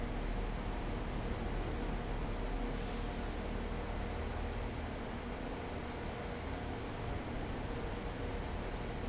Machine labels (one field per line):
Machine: fan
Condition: abnormal